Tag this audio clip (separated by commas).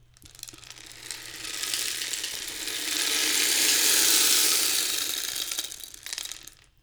Rattle (instrument), Music, Musical instrument, Percussion